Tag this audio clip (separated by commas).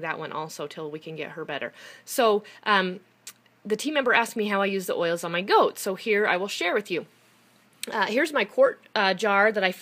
Speech